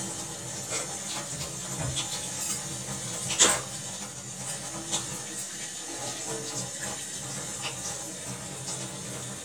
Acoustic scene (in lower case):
kitchen